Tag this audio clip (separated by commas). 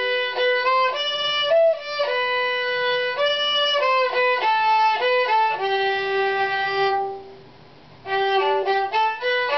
Music, fiddle, Musical instrument